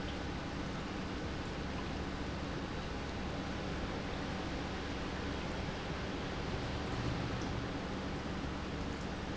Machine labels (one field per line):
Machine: pump